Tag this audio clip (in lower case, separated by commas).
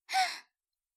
gasp, human voice, breathing, respiratory sounds